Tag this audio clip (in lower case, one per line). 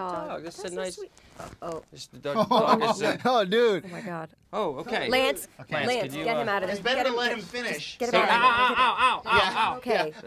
speech